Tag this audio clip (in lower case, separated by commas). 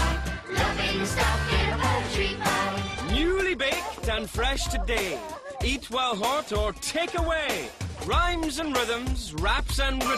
music